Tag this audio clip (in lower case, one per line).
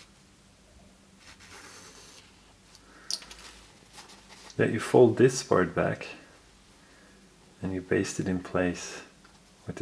speech